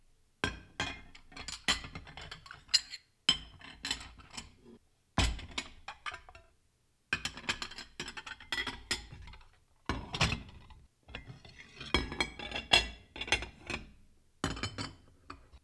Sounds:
Chink, Glass

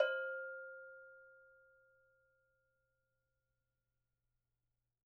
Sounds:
Bell

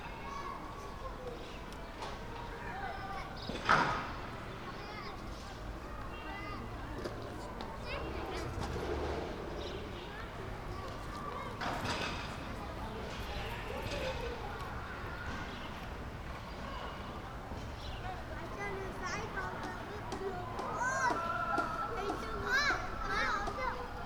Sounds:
Human group actions

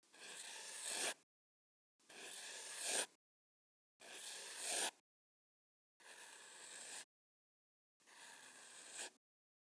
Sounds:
Writing, home sounds

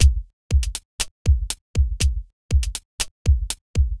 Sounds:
Music, Percussion, Drum kit, Musical instrument

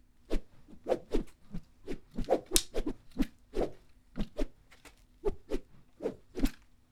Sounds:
swish

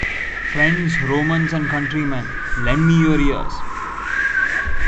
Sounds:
Speech, Human voice

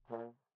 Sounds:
Brass instrument, Musical instrument, Music

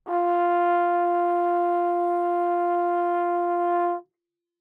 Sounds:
Musical instrument, Brass instrument, Music

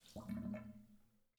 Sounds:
Water, Sink (filling or washing), Domestic sounds

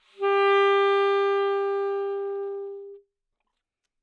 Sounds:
Music, Musical instrument, woodwind instrument

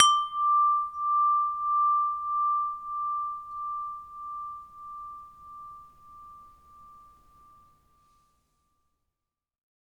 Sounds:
Chime, Bell, Wind chime

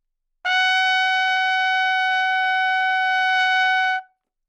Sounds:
Music, Trumpet, Brass instrument, Musical instrument

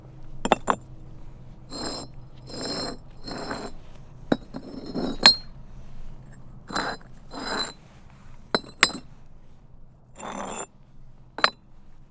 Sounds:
Glass, Chink

